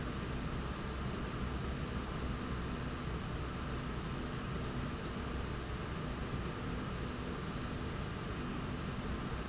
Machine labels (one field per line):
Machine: slide rail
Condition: normal